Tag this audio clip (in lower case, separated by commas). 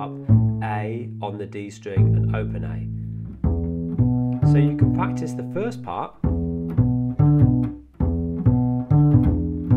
playing double bass